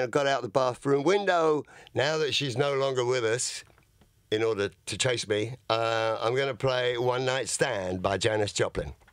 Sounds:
Speech

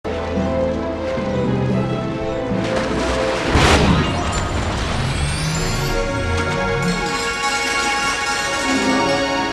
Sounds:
Music

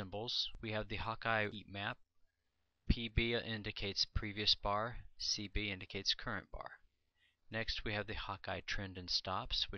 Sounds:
Speech

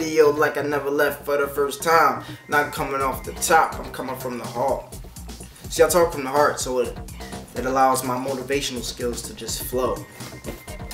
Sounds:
Speech, Music

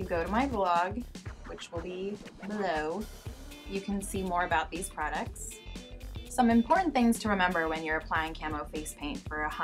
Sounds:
Speech, Music

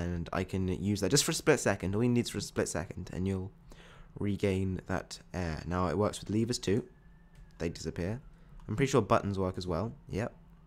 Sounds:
Speech

